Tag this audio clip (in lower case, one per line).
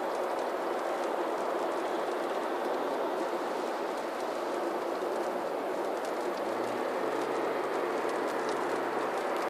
vehicle
car